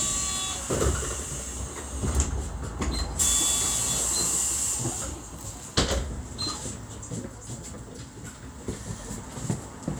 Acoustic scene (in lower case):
bus